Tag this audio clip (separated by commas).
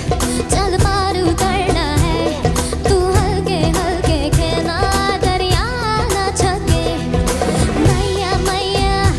child singing